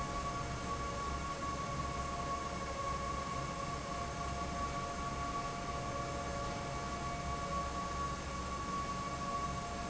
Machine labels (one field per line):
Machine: fan